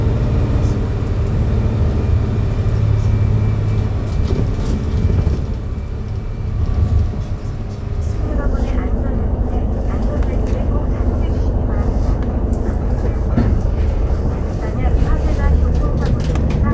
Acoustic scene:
bus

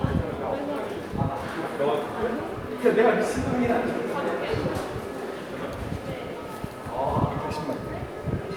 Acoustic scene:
subway station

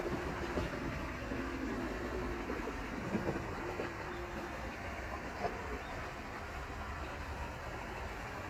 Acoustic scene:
park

